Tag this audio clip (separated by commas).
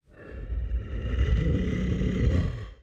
Animal